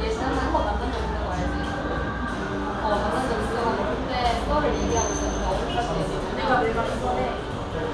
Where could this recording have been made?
in a cafe